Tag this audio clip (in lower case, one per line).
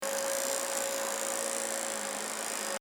home sounds